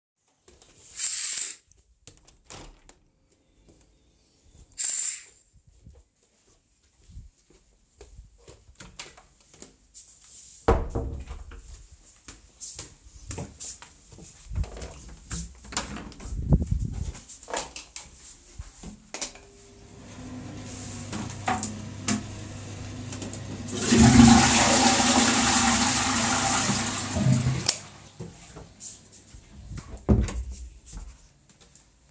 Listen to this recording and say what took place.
The person walks over to the window, draws back the curtain, and opens the window. Birdsong can be heard, then the person draws the curtain closed again. The person heads for the door, opens it, and closes it behind them. The person goes to the bathroom, opens the door, and switches on the light and the extractor fan. The person lowers the toilet seat and flushes the toilet. Then the person switches off the light and closes the door.